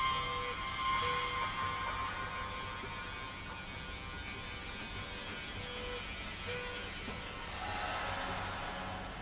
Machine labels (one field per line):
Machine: slide rail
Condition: normal